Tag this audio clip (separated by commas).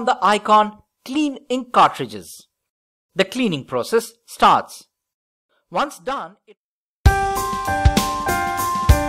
Speech, Music